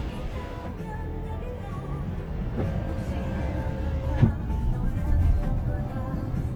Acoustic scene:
car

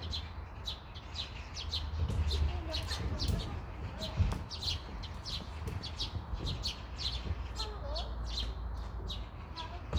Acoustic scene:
park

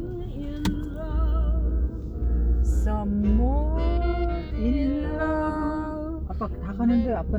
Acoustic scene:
car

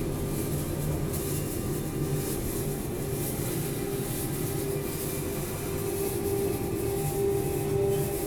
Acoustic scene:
subway station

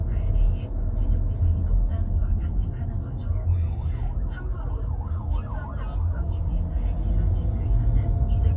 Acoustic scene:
car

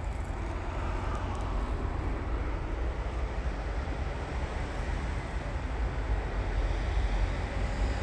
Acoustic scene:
street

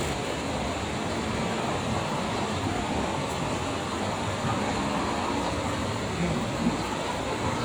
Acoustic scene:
street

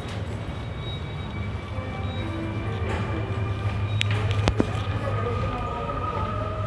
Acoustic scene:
subway station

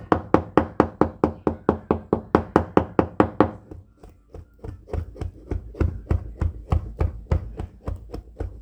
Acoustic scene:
kitchen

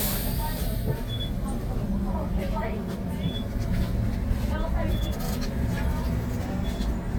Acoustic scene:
bus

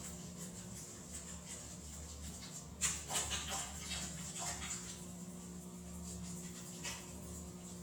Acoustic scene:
restroom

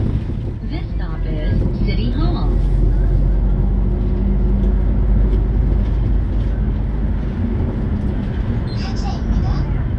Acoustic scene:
bus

